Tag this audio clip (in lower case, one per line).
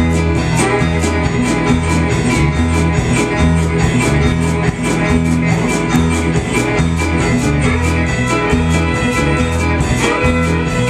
music
musical instrument
fiddle